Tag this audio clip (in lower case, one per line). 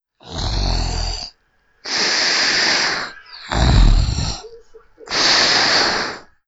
respiratory sounds
breathing